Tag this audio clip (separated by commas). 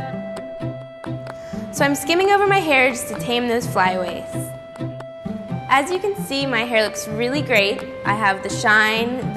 Music, Speech